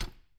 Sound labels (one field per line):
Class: cupboard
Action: opening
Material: wooden